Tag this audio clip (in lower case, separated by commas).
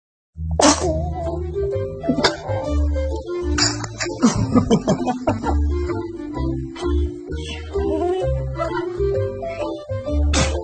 people sneezing